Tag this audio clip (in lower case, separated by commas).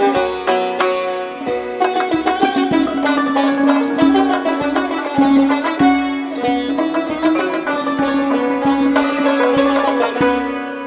music, traditional music